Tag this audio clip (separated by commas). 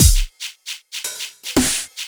Percussion, Music, Drum kit, Musical instrument